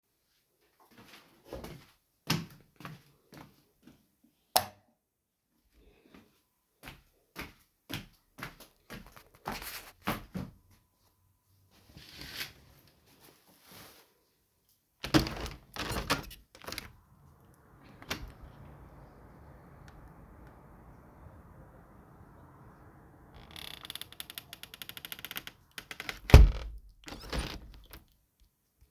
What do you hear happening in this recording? I moved around the bedroom, used the light switch, and opened and closed the window. The scene represents a simple movement-and-window interaction indoors.